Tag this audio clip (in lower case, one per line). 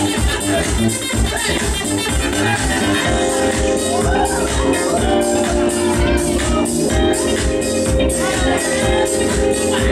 music of latin america